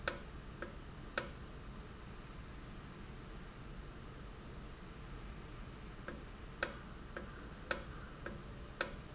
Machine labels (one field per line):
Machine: valve